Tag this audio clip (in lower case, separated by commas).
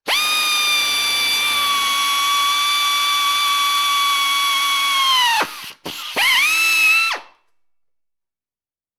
power tool, drill, tools